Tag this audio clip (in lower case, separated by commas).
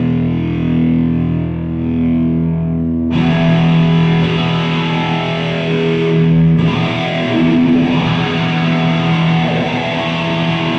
strum, guitar, musical instrument, music, plucked string instrument, electric guitar